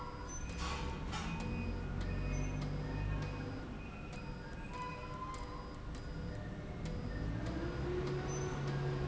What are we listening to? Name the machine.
slide rail